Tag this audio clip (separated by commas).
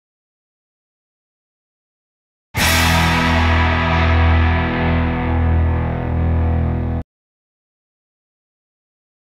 Music